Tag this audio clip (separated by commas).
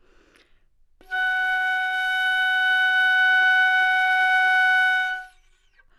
Musical instrument, woodwind instrument, Music